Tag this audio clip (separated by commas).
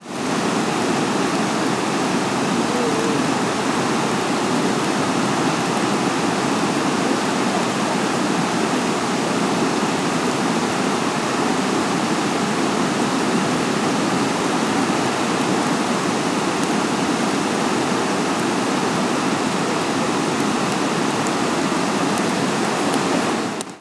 Water